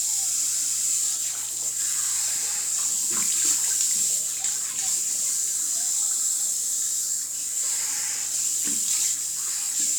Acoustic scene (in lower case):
restroom